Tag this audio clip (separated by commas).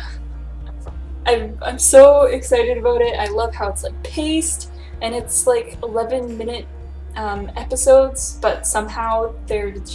Music, Speech